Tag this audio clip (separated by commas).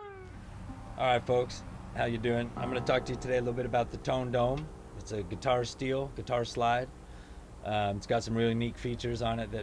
Speech